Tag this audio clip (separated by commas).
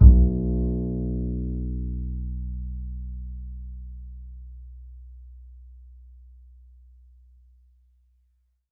Music, Musical instrument, Bowed string instrument